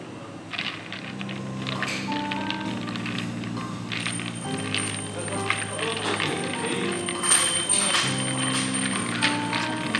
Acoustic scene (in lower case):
cafe